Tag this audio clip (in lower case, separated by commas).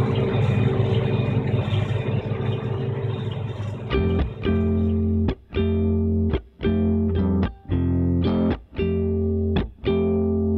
music, distortion, outside, urban or man-made, vehicle